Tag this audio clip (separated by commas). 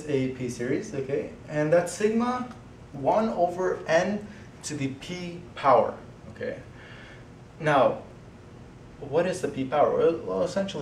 Speech